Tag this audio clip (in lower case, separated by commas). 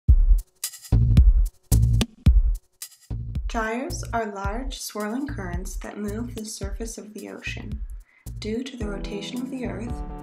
music, speech, drum machine